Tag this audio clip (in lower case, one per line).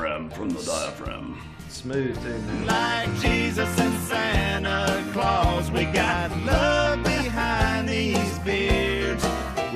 speech
music